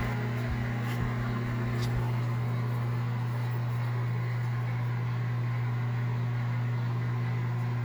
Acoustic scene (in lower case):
kitchen